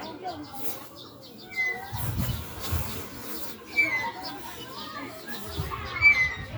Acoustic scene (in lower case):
residential area